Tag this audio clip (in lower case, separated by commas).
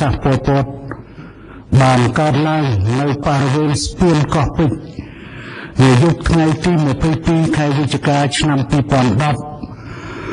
speech